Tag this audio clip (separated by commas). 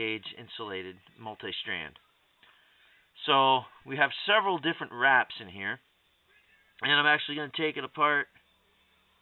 Speech